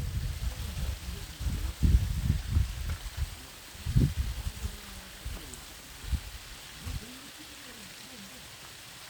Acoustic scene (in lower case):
park